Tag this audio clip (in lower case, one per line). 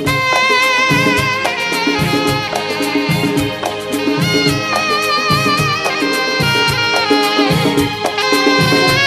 saxophone
music of bollywood
music
percussion
drum kit
musical instrument